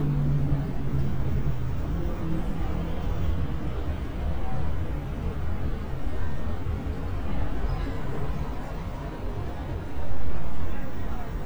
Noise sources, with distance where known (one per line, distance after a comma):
medium-sounding engine
unidentified human voice, far